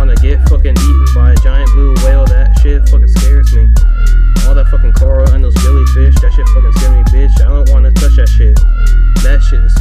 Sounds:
music

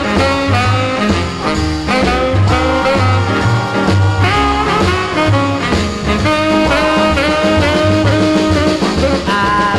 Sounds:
music

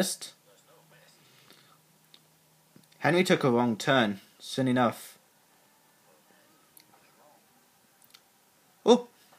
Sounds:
monologue, speech

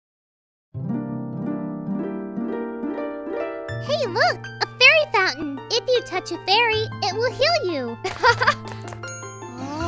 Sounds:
harp, speech, music

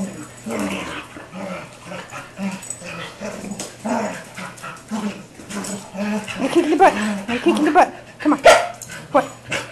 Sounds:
dog, animal, pets, inside a small room, speech

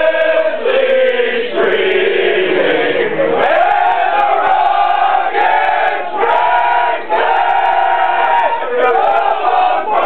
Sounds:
male singing, choir

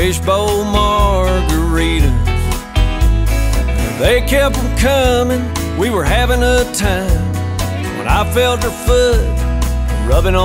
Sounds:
music

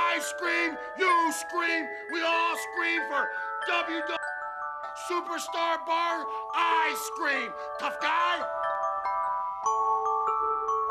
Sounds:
mallet percussion, glockenspiel, marimba

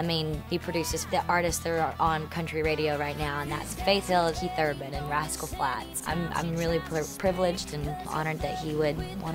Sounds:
speech, music

